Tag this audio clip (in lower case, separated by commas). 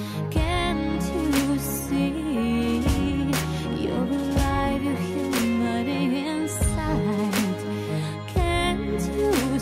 music